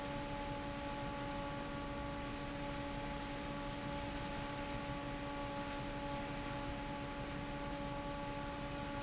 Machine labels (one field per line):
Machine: fan